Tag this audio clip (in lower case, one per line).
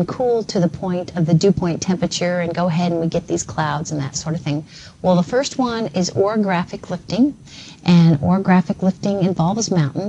speech